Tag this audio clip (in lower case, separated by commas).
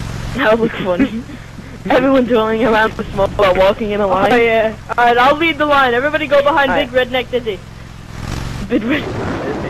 speech